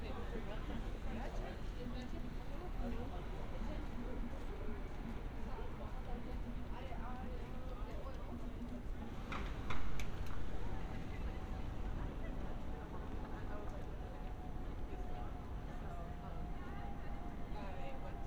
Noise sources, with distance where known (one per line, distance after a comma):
person or small group talking